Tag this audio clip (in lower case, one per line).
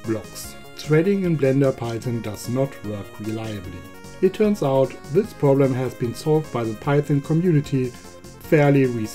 speech
music